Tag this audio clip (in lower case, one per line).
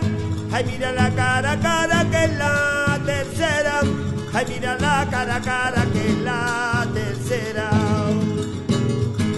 music